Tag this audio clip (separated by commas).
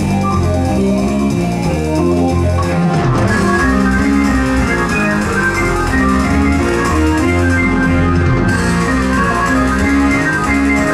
Keyboard (musical), Piano, Electric piano